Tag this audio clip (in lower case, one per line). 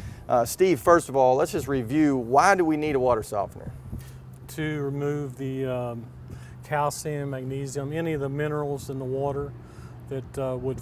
speech